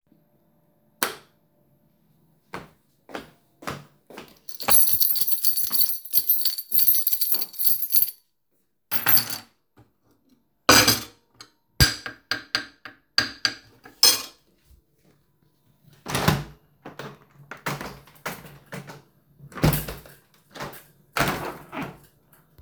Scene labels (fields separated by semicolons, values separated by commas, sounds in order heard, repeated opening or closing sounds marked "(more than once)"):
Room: living room; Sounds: light switch, footsteps, keys, cutlery and dishes, window